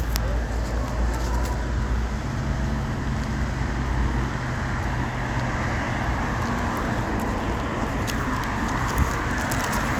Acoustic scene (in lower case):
street